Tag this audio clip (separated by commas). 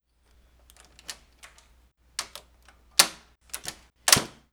Slam, Door, home sounds